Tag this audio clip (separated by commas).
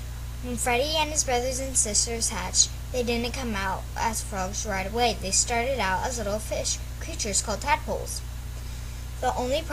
Speech